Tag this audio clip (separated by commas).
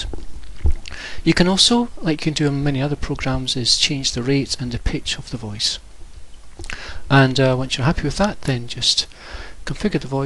Speech